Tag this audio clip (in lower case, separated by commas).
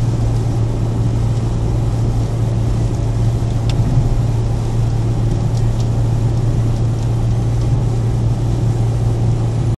raindrop